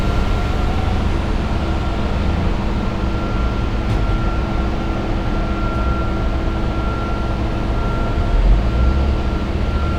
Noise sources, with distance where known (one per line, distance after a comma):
engine of unclear size